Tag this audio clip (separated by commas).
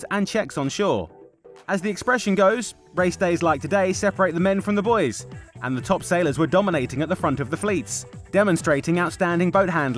Speech, Music